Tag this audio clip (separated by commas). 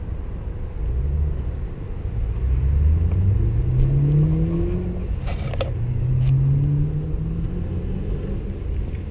Car, Vehicle